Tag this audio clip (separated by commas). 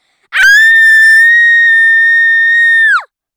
Human voice, Screaming